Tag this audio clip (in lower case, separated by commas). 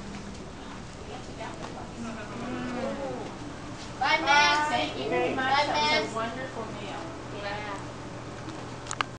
speech